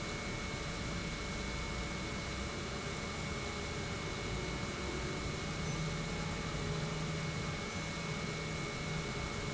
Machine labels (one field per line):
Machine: pump